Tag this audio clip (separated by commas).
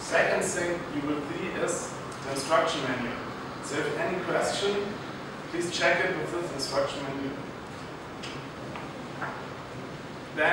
Speech